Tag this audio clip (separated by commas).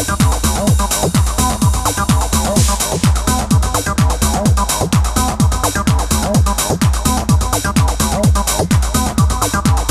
Electronic music, Techno, Music